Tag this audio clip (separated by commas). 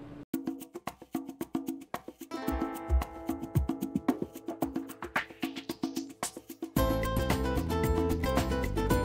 Music